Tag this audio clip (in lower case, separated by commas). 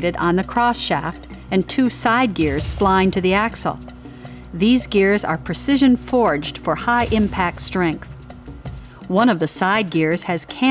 speech, music